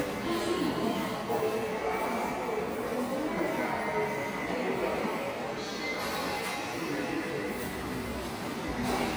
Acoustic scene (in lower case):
subway station